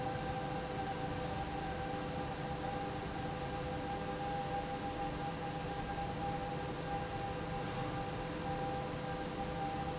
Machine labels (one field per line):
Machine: fan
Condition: abnormal